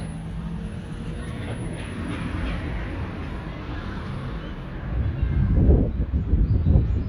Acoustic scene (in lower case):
residential area